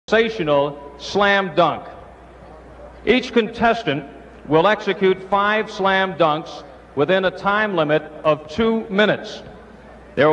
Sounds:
monologue, Speech

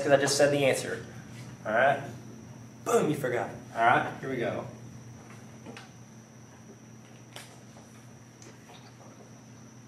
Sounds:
inside a small room, Speech

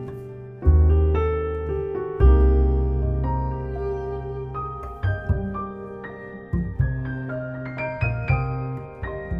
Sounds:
Music

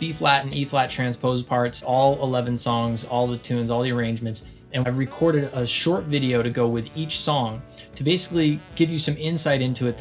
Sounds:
Speech, Music

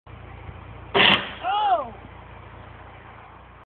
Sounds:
Burst

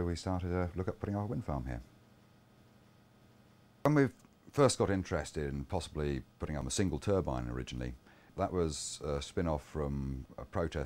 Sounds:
Speech

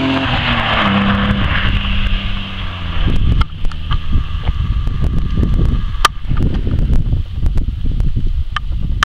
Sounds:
Mechanisms

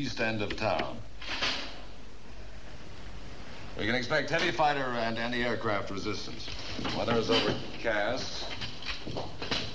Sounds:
Speech

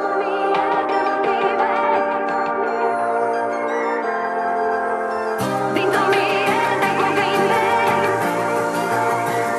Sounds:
Brass instrument

